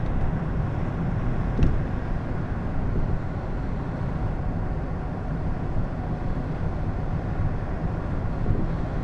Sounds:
vehicle
car

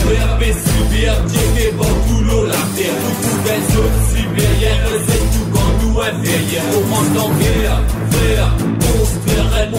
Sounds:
rhythm and blues
music

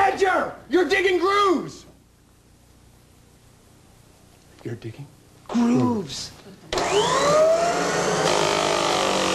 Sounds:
speech
male speech

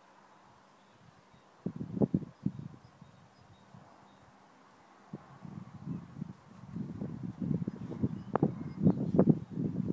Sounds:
outside, rural or natural

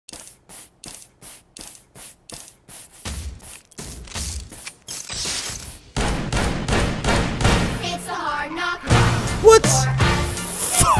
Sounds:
music

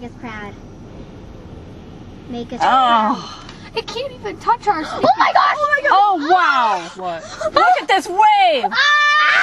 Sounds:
surf
speech
screaming
ocean

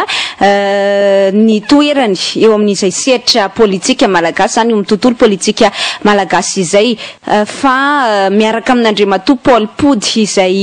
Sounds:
speech

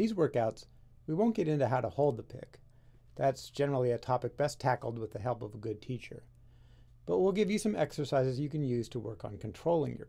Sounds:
speech

